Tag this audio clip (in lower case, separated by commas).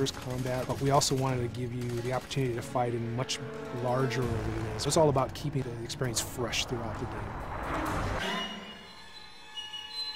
music, speech